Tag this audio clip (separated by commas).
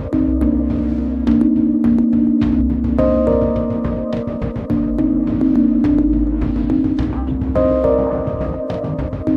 Music, Rhythm and blues